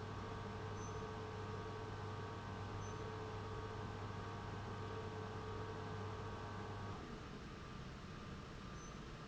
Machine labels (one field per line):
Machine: pump